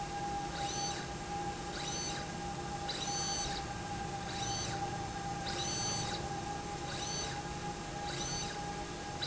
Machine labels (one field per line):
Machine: slide rail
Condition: abnormal